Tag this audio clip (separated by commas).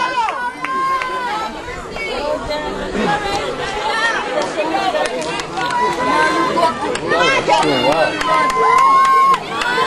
Run, Chatter, Speech